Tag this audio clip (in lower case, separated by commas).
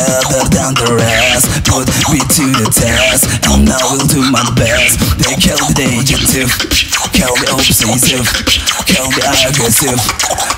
beat boxing